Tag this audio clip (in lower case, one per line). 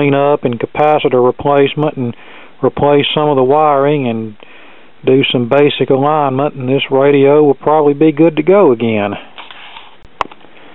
speech